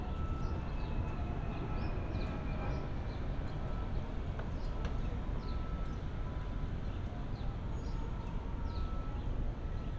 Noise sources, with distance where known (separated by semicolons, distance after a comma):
unidentified alert signal, far